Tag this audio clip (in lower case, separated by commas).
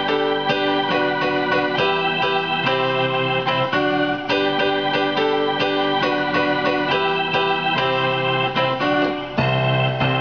music, organ, electronic organ, electric piano, keyboard (musical), musical instrument